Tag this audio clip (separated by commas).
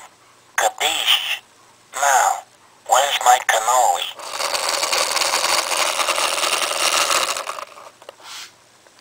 Speech